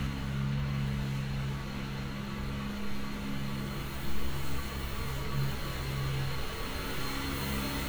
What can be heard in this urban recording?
unidentified impact machinery